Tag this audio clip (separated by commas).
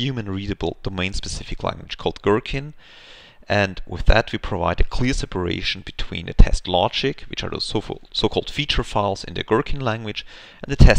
Speech